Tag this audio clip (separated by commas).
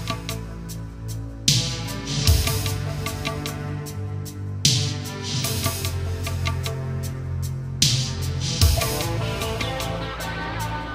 Music